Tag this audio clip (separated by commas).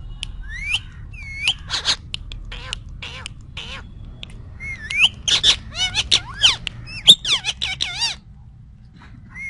parrot talking